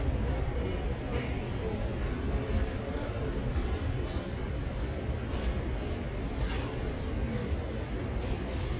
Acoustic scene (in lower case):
subway station